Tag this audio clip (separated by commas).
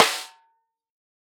Music, Musical instrument, Drum, Percussion, Snare drum